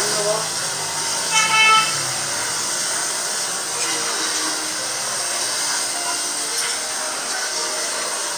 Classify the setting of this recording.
restaurant